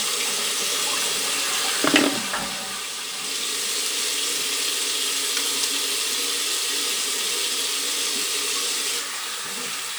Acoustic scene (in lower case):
restroom